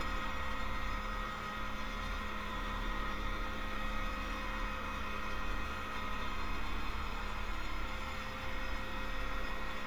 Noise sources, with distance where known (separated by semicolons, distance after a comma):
engine of unclear size